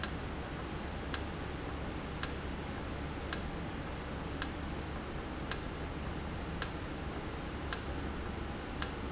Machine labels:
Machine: valve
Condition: normal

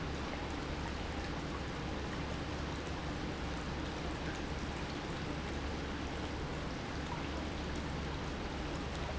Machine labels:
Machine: pump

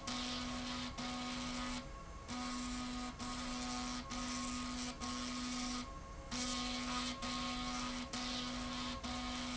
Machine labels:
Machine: slide rail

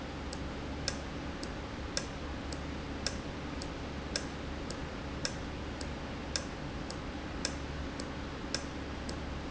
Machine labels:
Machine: valve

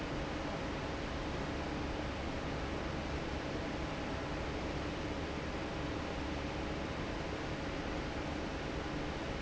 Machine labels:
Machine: fan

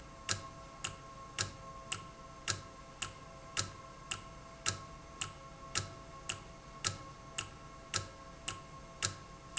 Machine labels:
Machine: valve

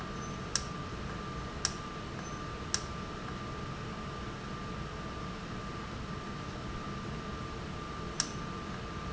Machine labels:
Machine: valve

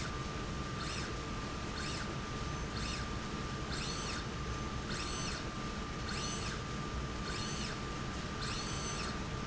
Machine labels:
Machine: slide rail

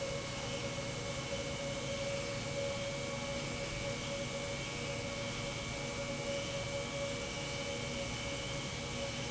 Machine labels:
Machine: pump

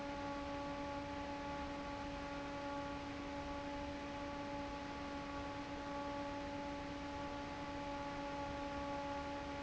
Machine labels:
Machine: fan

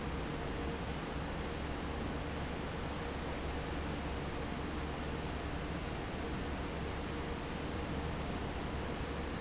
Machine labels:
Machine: fan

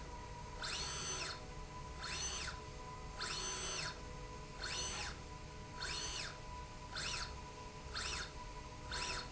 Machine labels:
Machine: slide rail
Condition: normal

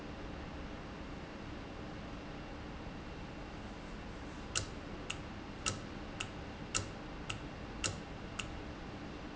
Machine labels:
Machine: valve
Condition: normal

